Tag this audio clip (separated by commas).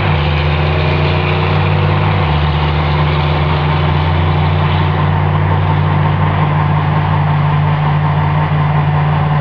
Vehicle, outside, rural or natural, Heavy engine (low frequency), Truck